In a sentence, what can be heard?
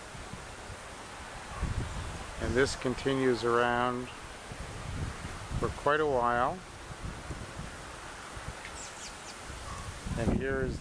Wind blows, a man speaks, and birds chirp in the background